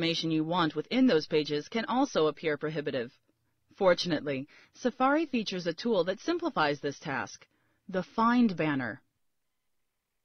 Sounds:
narration, speech

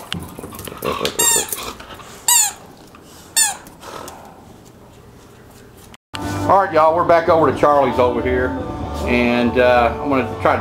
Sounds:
inside a small room, music, speech, dog

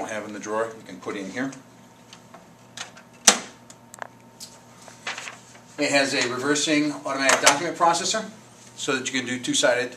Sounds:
speech

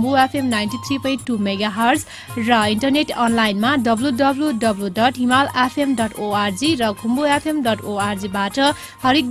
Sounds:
speech, music

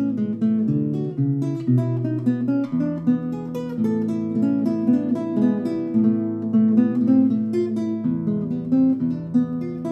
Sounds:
acoustic guitar, guitar, strum, plucked string instrument, musical instrument, music

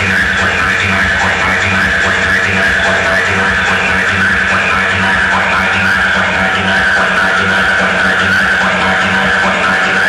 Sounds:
techno, electronic music, music

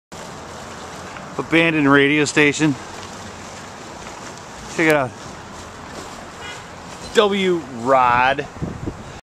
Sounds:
speech

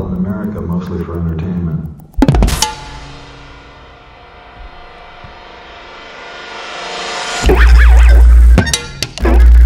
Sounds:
percussion, music, speech, wood block, musical instrument

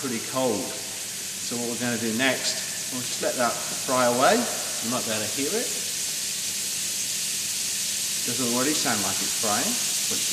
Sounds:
frying (food)

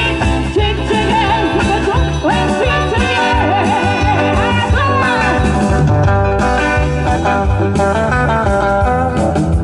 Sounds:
musical instrument, singing, music, brass instrument, blues

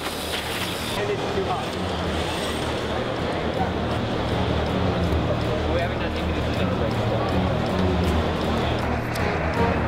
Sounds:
music, speech

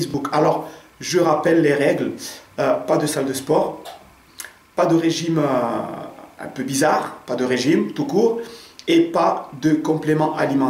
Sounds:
speech

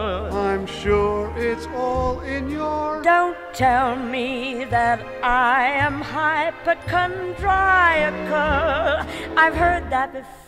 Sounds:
male singing, female singing, music

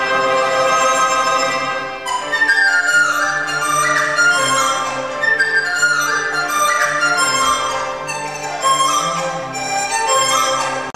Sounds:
music, flute

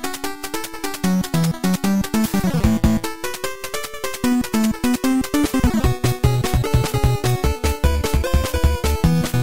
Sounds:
rhythm and blues, music

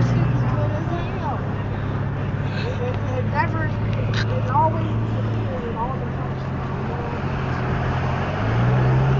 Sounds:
vehicle, car, outside, urban or man-made, speech, traffic noise, motor vehicle (road)

